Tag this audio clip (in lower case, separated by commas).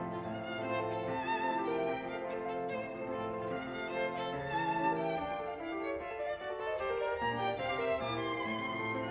fiddle, musical instrument, music